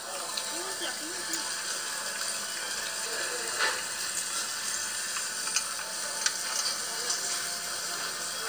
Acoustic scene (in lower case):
restaurant